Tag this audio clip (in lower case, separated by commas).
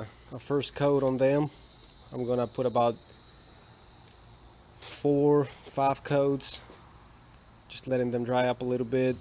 outside, urban or man-made, speech